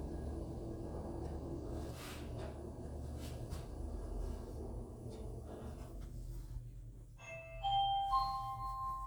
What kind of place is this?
elevator